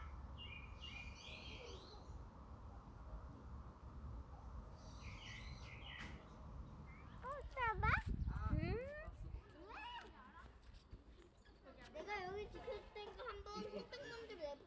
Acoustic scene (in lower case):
park